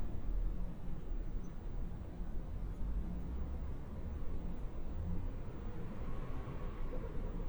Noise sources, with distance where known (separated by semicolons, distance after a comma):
engine of unclear size, far